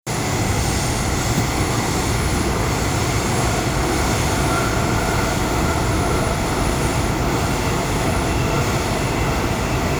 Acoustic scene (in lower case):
subway train